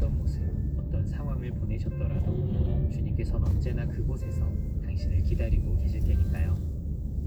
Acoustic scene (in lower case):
car